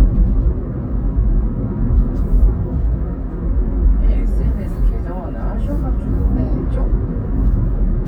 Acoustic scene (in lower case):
car